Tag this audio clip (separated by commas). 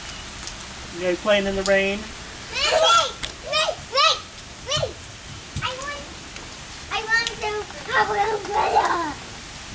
Rain